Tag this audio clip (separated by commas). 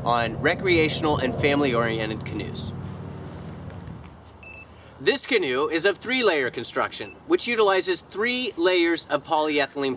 Speech